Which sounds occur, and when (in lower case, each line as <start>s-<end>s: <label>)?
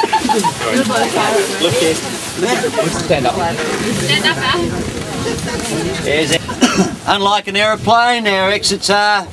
0.0s-0.5s: laughter
0.0s-9.3s: speech noise
0.0s-9.3s: stream
0.0s-9.3s: wind
0.5s-1.1s: male speech
0.5s-9.3s: conversation
0.8s-1.4s: woman speaking
1.5s-2.0s: male speech
3.0s-3.5s: male speech
4.0s-4.6s: woman speaking
5.1s-6.0s: laughter
6.0s-6.4s: male speech
6.5s-6.9s: cough
7.1s-9.3s: male speech